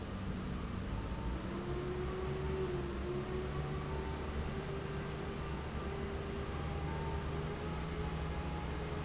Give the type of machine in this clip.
fan